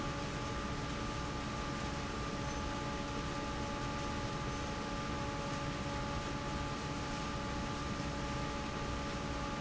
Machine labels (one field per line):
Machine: fan